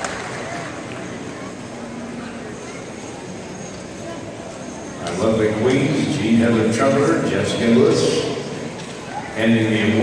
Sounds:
Speech

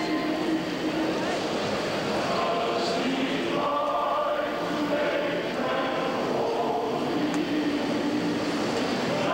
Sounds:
singing choir

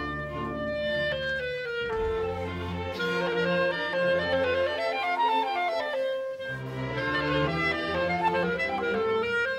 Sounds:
Bowed string instrument, woodwind instrument, Musical instrument, Music, fiddle

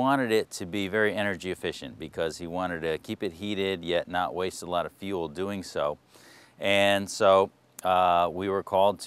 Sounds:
Speech

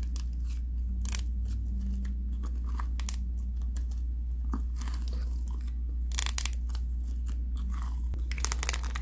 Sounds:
ice cracking

